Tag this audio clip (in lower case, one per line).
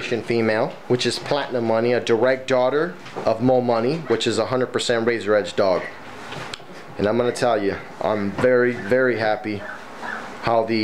speech